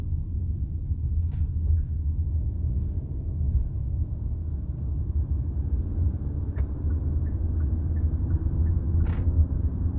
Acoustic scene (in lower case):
car